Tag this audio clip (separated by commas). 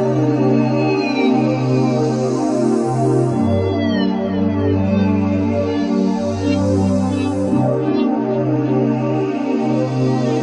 Music